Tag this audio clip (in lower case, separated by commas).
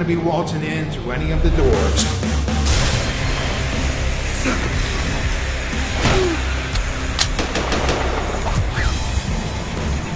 music, speech